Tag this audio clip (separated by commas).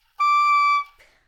Musical instrument, Music, Wind instrument